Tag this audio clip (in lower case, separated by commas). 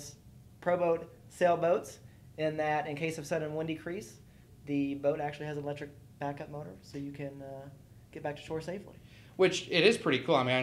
speech